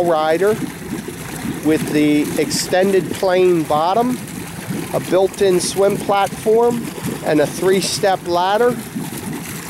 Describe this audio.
A man talks, and water runs